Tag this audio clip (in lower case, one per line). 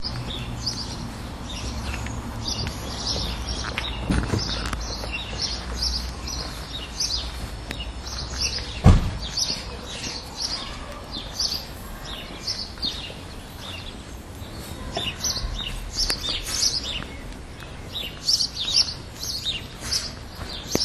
chirp
animal
bird vocalization
wild animals
bird